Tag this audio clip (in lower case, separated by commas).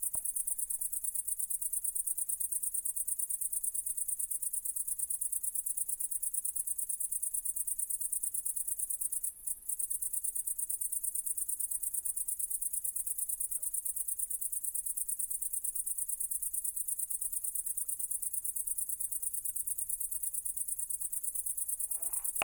insect, wild animals, animal, cricket